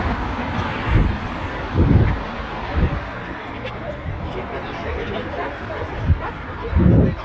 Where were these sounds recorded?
on a street